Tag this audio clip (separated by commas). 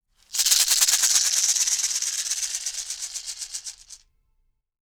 Percussion, Musical instrument, Music, Rattle (instrument)